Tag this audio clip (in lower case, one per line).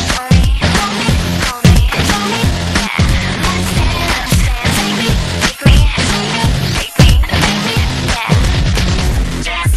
rock and roll
music
roll